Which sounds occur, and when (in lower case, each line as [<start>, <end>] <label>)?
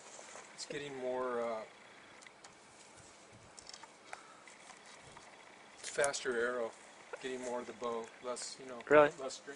[0.00, 0.39] surface contact
[0.01, 9.55] wind
[0.54, 9.55] conversation
[0.56, 1.67] man speaking
[2.17, 2.24] generic impact sounds
[2.39, 2.47] generic impact sounds
[2.69, 3.27] surface contact
[2.73, 2.85] generic impact sounds
[3.52, 3.81] generic impact sounds
[3.99, 4.36] breathing
[4.02, 4.17] generic impact sounds
[4.42, 4.70] generic impact sounds
[4.80, 5.16] surface contact
[5.13, 5.23] generic impact sounds
[5.78, 6.70] man speaking
[5.98, 6.08] generic impact sounds
[7.06, 7.15] hiccup
[7.14, 9.55] man speaking
[7.34, 7.51] surface contact
[7.77, 8.05] generic impact sounds
[8.64, 8.84] generic impact sounds